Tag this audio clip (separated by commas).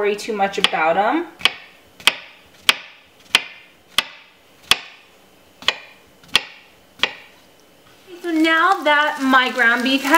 inside a small room, Speech